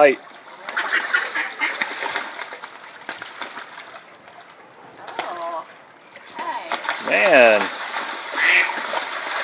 People are playing with a duck splashing in water